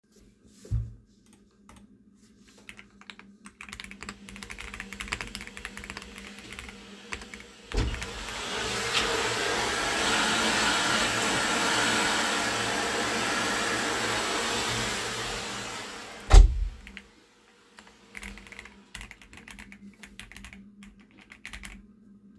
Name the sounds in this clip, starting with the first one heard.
keyboard typing, vacuum cleaner, door